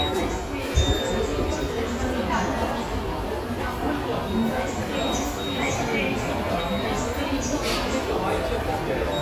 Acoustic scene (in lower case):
subway station